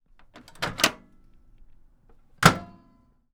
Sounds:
microwave oven
home sounds

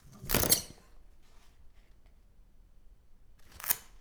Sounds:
tearing

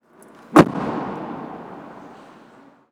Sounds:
domestic sounds
motor vehicle (road)
car
vehicle
door

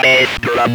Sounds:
human voice
speech

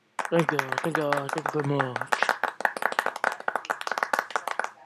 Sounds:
human group actions
clapping
crowd
human voice
hands

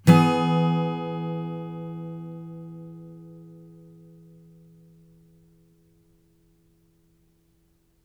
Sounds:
music
strum
guitar
plucked string instrument
musical instrument
acoustic guitar

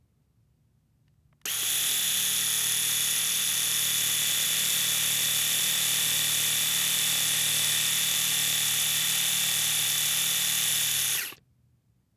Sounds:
domestic sounds

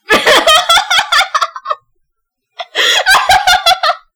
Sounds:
human voice
laughter

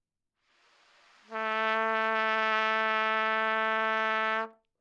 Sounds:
music
trumpet
musical instrument
brass instrument

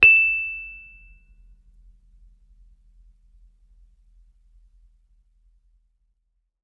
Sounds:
musical instrument
keyboard (musical)
music
piano

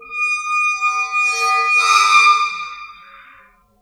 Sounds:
squeak

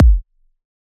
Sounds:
musical instrument
bass drum
percussion
music
drum
keyboard (musical)

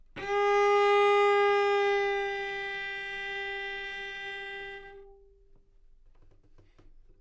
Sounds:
music
musical instrument
bowed string instrument

